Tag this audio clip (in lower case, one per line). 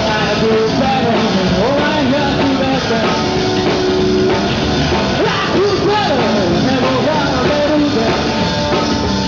music